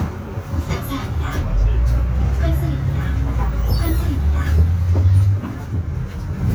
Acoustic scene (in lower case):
bus